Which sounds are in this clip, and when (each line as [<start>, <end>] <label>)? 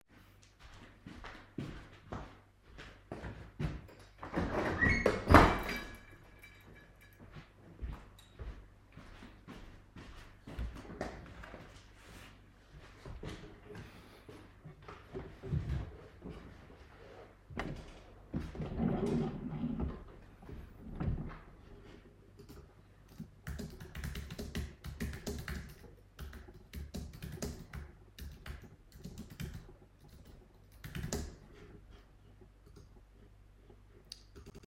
[0.36, 4.07] footsteps
[3.98, 7.49] window
[7.02, 16.17] footsteps
[23.44, 32.00] keyboard typing